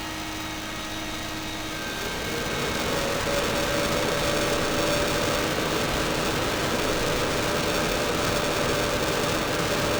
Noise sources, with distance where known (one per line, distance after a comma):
large-sounding engine, near